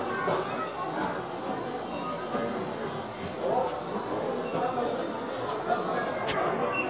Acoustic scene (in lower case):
crowded indoor space